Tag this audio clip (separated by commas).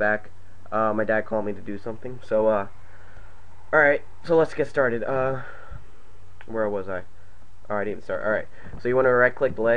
Speech